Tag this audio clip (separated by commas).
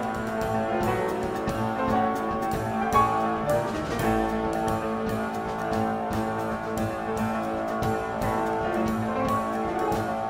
Music, Jazz